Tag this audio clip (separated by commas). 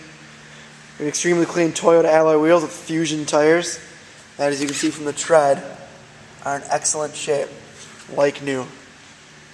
Speech